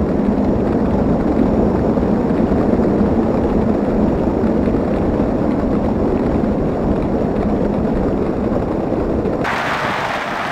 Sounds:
Horse, Animal, Vehicle

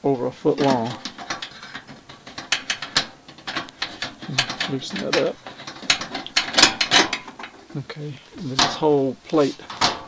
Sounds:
Speech

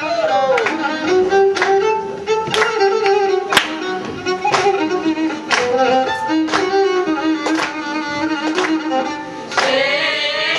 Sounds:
Music

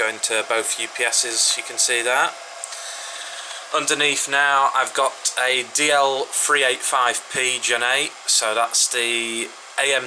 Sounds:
inside a small room, Speech

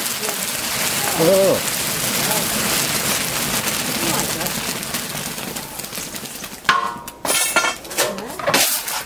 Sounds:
Speech

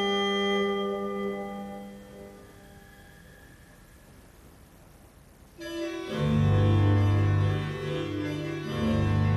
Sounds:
Keyboard (musical), inside a small room, Musical instrument, Music

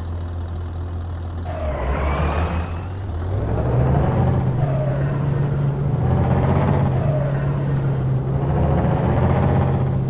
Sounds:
Sound effect

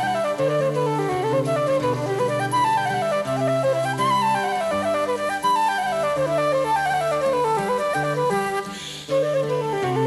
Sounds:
Flute, Music

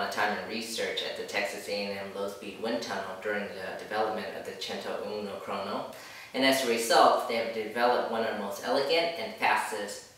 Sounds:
Speech

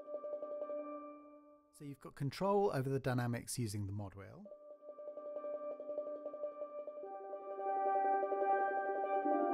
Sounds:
Speech, Musical instrument, Music

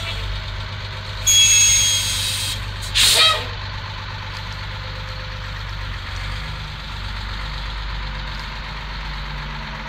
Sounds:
Truck, Vehicle

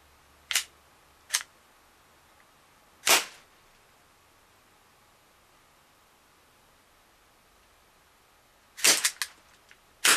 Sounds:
inside a small room

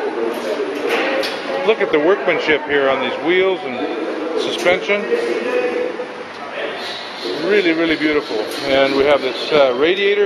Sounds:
Speech

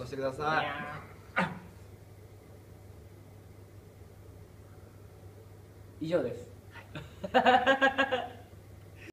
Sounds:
Speech

